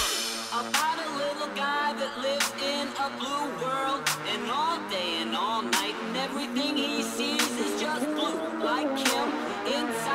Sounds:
music
dubstep
electronic music

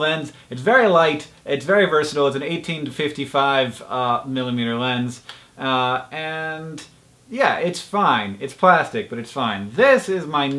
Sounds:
speech

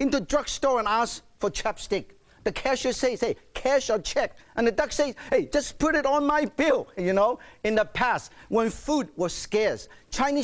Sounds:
speech

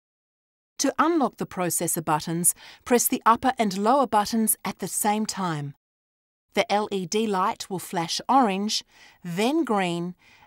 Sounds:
speech

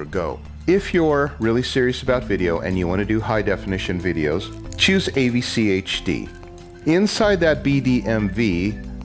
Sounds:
music
speech

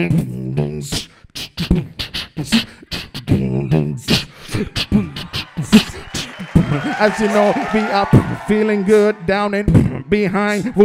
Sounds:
beat boxing

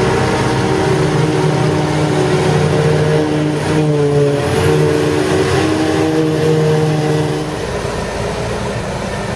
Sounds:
vehicle

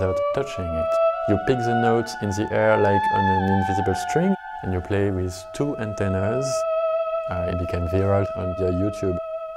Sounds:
playing theremin

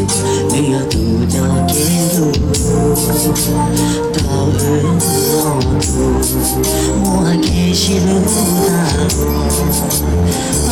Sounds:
male singing
music

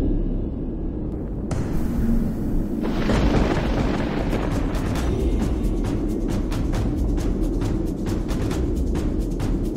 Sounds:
music

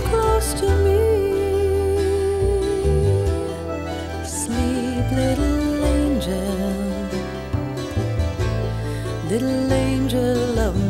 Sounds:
music

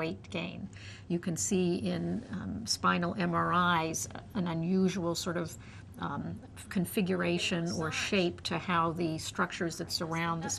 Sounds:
speech
inside a small room

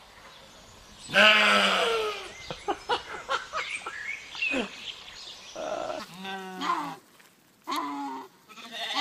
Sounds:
sheep bleating

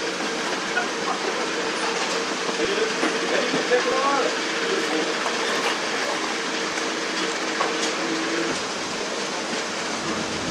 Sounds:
speech
vehicle

